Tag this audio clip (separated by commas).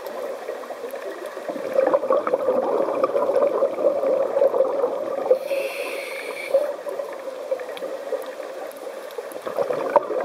scuba diving